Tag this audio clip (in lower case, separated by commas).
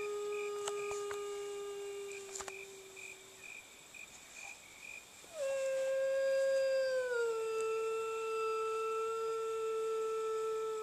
howl